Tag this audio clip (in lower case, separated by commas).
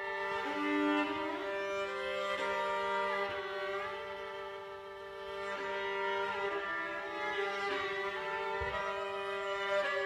bowed string instrument, music, orchestra